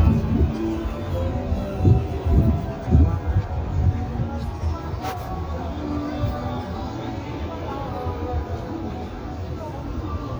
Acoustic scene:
street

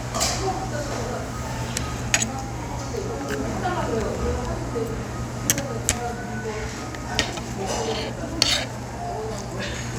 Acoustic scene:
restaurant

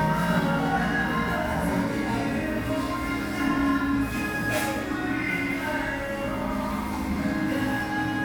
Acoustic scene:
cafe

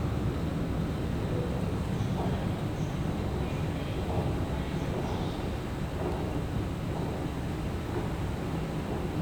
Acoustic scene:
subway station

